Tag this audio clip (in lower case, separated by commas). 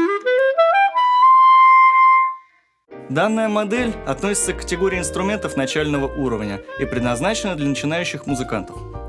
saxophone, music, speech